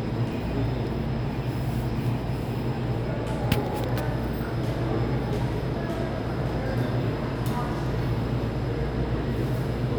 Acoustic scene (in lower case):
subway station